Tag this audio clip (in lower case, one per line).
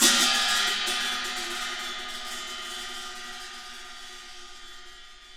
crash cymbal
musical instrument
music
cymbal
percussion